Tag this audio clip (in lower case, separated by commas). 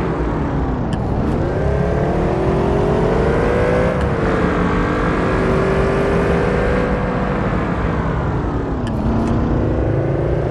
car